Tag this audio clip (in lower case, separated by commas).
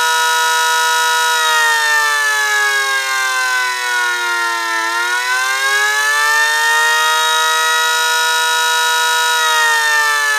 civil defense siren, siren